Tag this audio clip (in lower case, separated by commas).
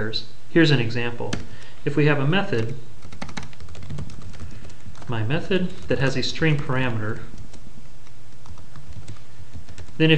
speech